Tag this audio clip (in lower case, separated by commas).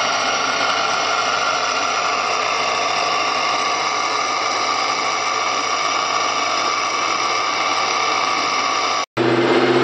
engine, vehicle, car